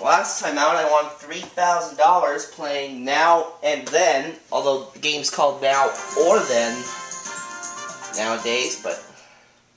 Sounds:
Music, Speech

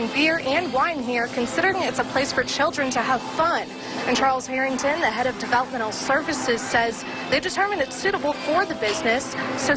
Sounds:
Speech, Music

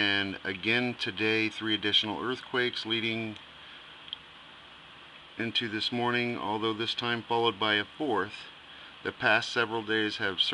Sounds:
Speech

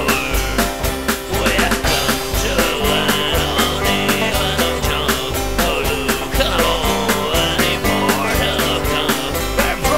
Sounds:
Music

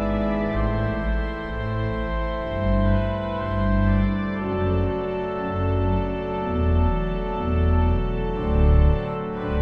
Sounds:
playing electronic organ

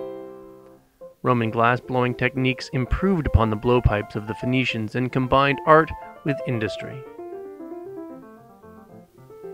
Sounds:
Speech, Music

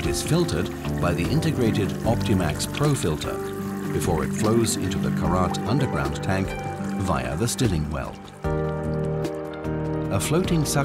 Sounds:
Water, Speech, Music

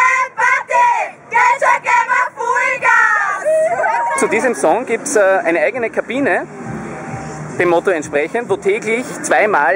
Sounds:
Speech

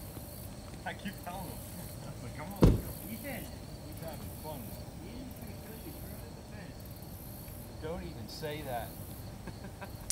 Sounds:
Speech

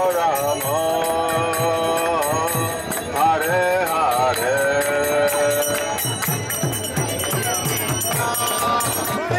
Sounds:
Music, Mantra

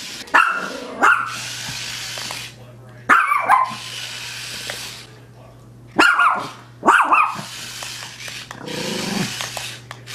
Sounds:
dog barking

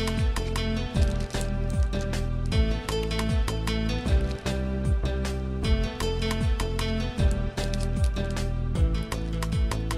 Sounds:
Music

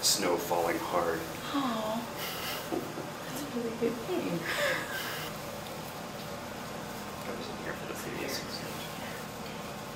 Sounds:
Speech

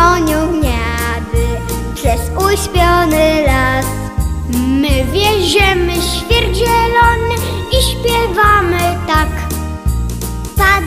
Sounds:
Music

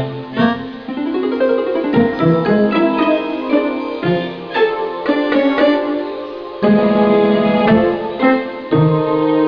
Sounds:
Marimba, Mallet percussion, Glockenspiel

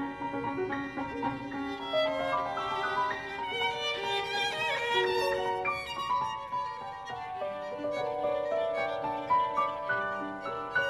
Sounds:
Musical instrument, fiddle, Music

